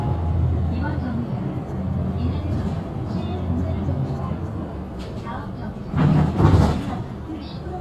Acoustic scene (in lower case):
bus